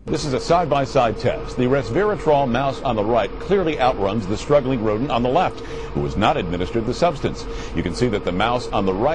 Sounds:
Speech

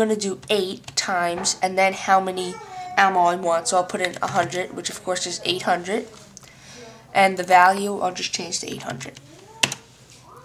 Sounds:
Speech

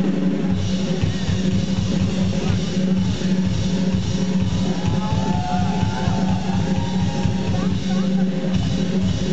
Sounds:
Drum kit, Drum, Musical instrument, Music, Bass drum

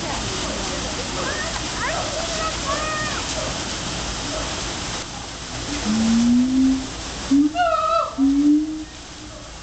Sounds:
gibbon howling

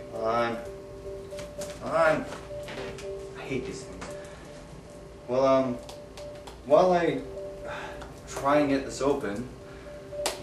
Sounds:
Speech, Music

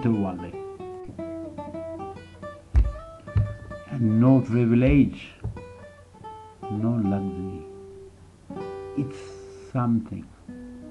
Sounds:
Strum, Music, Speech

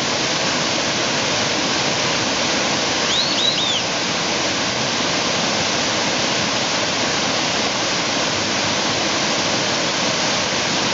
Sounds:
Whistling

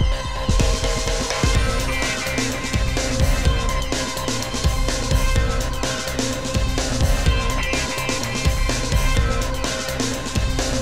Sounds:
Music

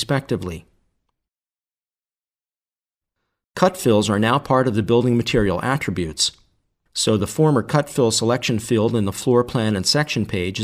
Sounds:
Speech

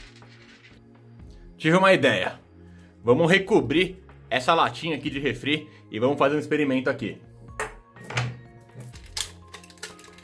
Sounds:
striking pool

